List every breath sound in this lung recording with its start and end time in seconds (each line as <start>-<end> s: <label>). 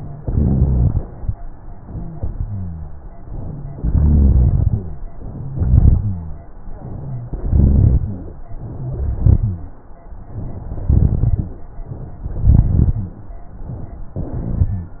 0.17-1.03 s: inhalation
0.17-1.03 s: rhonchi
2.43-3.06 s: rhonchi
3.85-5.03 s: inhalation
3.85-5.03 s: rhonchi
5.28-6.45 s: rhonchi
5.33-6.42 s: exhalation
7.25-8.43 s: inhalation
7.25-8.43 s: rhonchi
8.65-9.73 s: exhalation
8.80-9.68 s: rhonchi
10.25-10.93 s: inhalation
10.87-11.56 s: exhalation
10.87-11.56 s: crackles
12.20-13.07 s: inhalation
12.20-13.07 s: crackles
14.19-15.00 s: exhalation
14.19-15.00 s: rhonchi